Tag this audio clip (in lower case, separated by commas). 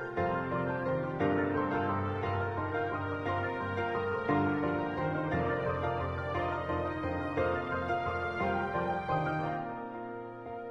music